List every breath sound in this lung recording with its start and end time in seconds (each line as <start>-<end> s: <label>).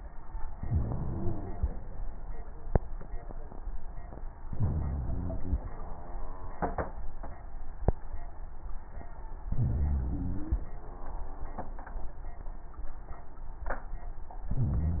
0.55-1.76 s: inhalation
0.55-1.76 s: wheeze
4.48-5.55 s: inhalation
4.48-5.55 s: wheeze
9.54-10.60 s: inhalation
9.54-10.60 s: wheeze
14.50-15.00 s: inhalation
14.50-15.00 s: wheeze